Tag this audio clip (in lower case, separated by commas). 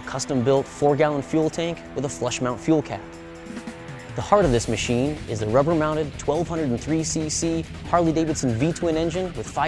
music, speech